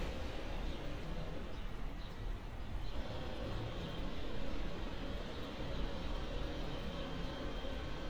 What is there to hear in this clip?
unidentified impact machinery